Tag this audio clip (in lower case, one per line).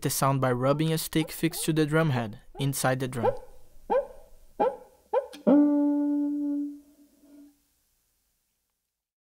percussion
speech
music